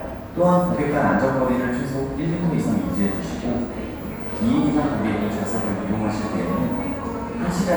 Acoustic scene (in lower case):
cafe